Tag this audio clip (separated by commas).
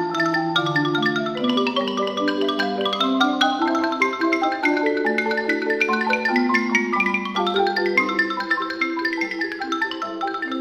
Percussion, Music